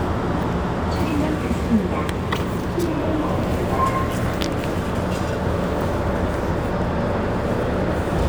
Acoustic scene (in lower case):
subway train